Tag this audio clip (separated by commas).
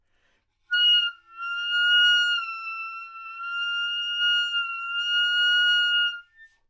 Musical instrument, Music, Wind instrument